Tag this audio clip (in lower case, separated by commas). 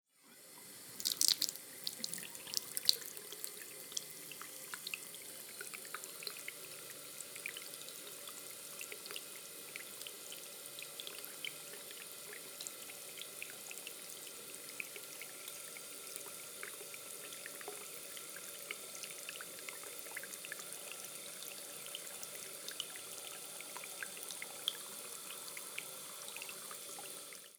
faucet, home sounds, sink (filling or washing)